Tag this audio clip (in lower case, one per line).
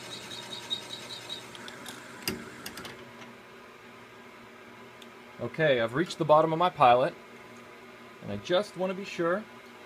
speech
wood
tools